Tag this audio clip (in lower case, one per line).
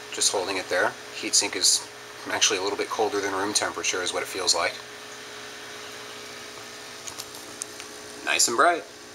speech